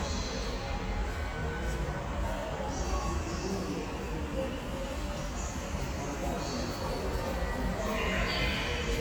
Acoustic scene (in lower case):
subway station